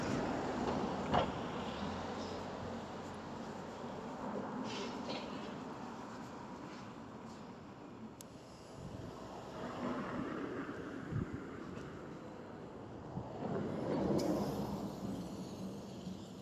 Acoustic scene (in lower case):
street